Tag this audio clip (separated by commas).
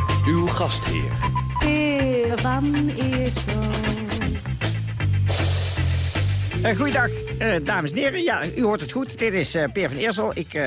Music, Speech